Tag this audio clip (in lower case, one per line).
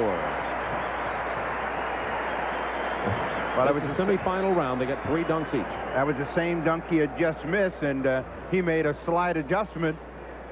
speech